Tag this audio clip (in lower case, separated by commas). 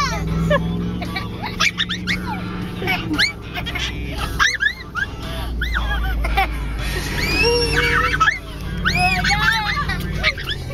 vehicle, outside, rural or natural, music, car